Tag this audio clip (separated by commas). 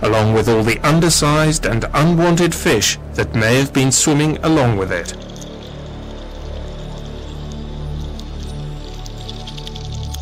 Music, Speech